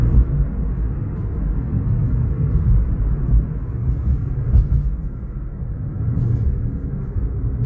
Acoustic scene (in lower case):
car